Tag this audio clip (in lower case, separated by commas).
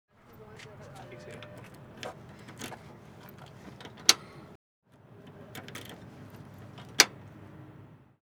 vehicle, motor vehicle (road)